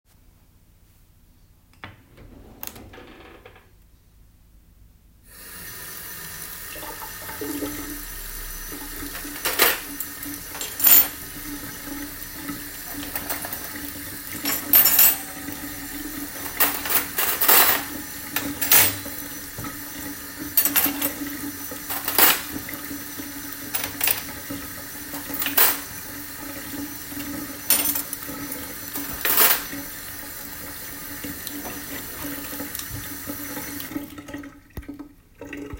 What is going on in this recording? I open the water tap then take out cutlery and put it next to the sink